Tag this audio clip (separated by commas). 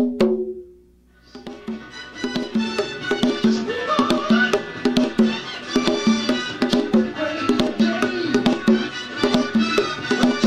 playing congas